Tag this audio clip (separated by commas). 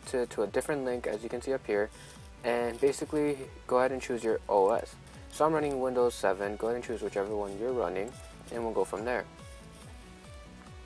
Music, Speech